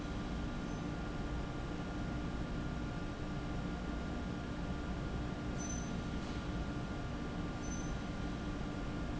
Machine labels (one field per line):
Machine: fan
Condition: abnormal